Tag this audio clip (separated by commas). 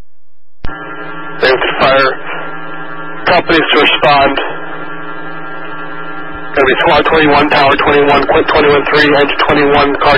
Speech